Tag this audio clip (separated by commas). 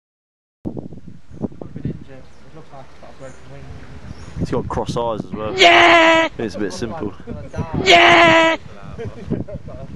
Speech, Bird